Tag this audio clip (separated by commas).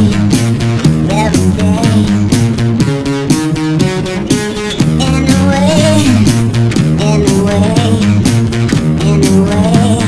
Video game music, Theme music, Music